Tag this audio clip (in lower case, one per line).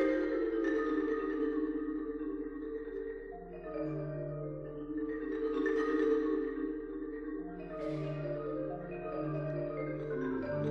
music
percussion
vibraphone
marimba